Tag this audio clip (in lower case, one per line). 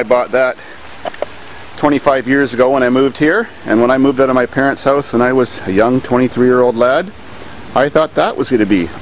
speech
outside, rural or natural